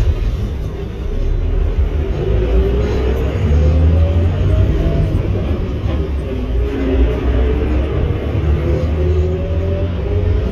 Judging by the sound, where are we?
on a bus